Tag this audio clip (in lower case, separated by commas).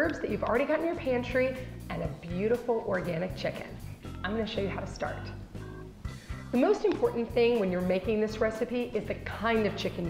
speech, music